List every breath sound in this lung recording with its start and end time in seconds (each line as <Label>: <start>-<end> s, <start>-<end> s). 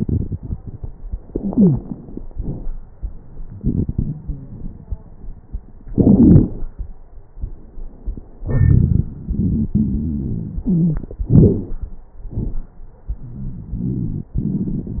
Inhalation: 1.33-2.20 s
Exhalation: 2.28-2.69 s
Wheeze: 1.33-1.80 s, 4.13-4.67 s, 8.41-9.06 s, 9.27-11.03 s, 13.21-14.35 s
Crackles: 2.28-2.69 s